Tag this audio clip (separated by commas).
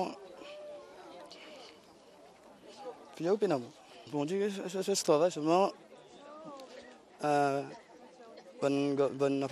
Speech